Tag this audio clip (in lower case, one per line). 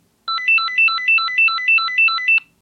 alarm
telephone
ringtone